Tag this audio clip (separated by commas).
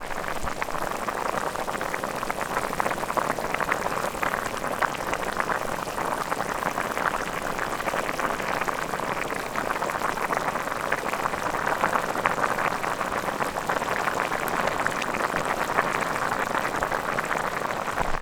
Boiling, Liquid